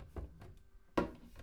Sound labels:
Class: cupboard; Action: opening; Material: wooden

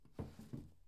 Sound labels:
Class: drawer; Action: opening; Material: wooden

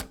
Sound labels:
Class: object falling; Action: being thrown; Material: plastic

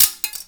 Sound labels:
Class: object falling; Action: being thrown; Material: plastic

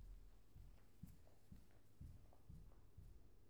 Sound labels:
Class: footsteps; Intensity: low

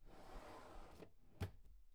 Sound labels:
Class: drawer; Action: closing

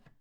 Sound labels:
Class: cupboard; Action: opening; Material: wooden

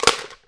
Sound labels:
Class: object falling; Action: being thrown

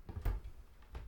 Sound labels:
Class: cupboard; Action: opening; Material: wooden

